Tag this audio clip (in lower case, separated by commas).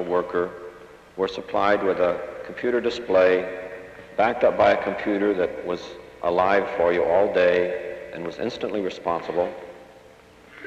speech